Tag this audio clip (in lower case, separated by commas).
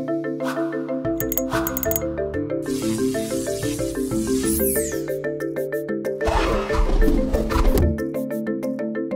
sound effect, music